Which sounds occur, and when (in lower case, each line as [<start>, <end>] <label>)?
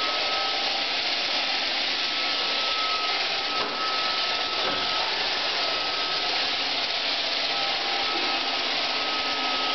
[0.00, 9.74] vacuum cleaner
[3.48, 3.66] generic impact sounds
[4.55, 4.77] generic impact sounds